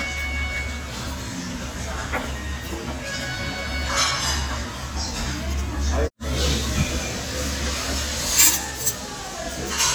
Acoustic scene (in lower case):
restaurant